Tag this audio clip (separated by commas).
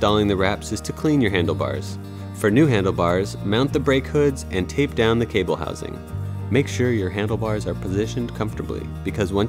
Speech, Music